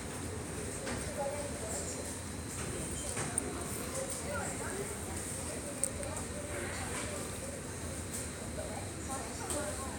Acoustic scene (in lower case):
subway station